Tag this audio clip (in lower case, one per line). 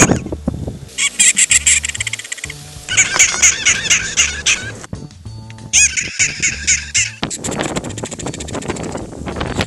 music
animal